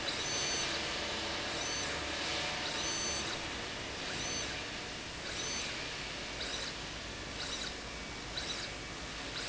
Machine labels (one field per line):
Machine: slide rail